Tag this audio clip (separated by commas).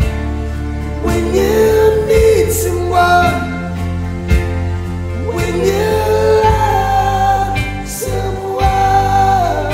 Singing